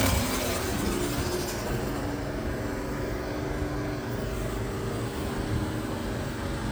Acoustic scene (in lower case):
street